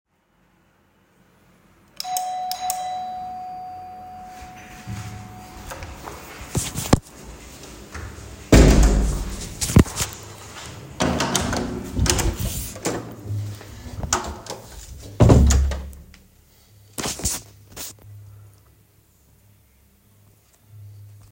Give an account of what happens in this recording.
i had a freind ring the bell and the light switch freind is just me open the hallway lights